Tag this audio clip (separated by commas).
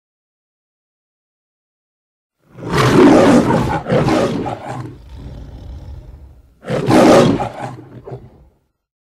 Silence, Roar